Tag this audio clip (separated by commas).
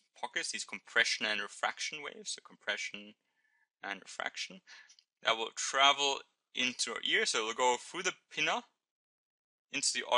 Speech